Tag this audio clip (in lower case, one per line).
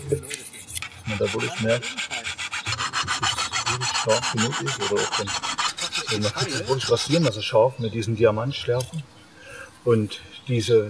sharpen knife